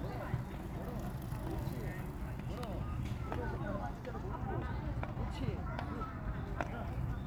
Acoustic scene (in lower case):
park